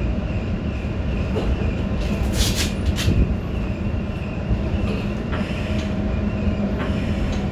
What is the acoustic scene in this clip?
subway train